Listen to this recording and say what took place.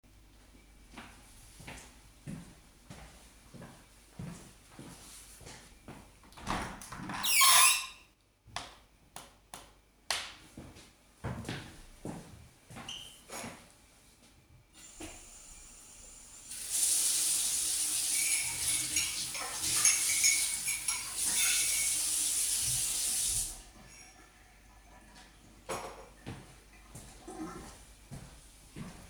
I went to the window and opened it. Then I went to the sink, turned on the water, washed the cutlery and dishes, and then turned off the water.